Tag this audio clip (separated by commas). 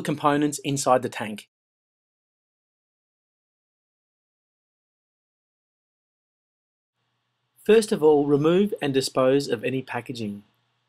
Speech